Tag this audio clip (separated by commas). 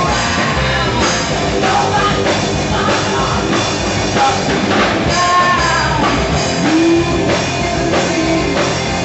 Music, Progressive rock, Rock and roll, Punk rock